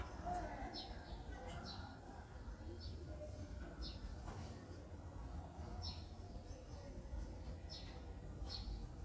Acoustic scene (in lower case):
residential area